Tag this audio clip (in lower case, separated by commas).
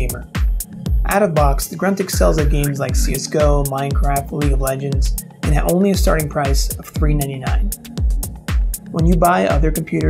music, speech